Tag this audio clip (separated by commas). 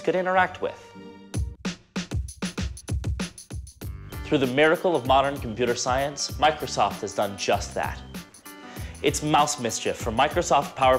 Music, Speech